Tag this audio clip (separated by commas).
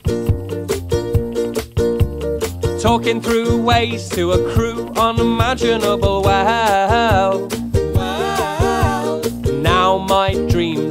Music